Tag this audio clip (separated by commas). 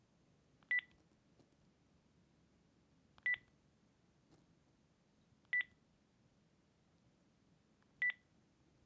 Telephone, Alarm